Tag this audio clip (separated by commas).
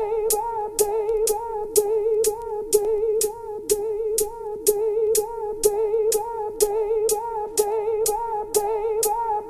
Music